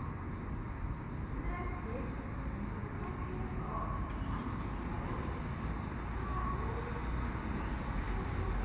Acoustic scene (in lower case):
street